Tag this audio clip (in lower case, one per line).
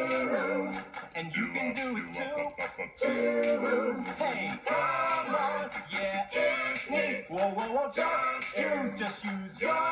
music